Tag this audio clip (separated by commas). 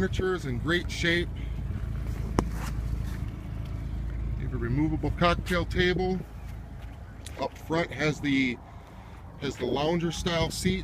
Motorboat, Water vehicle, Vehicle, Speech